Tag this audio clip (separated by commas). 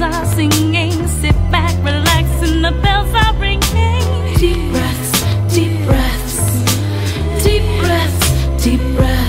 Music, Rhythm and blues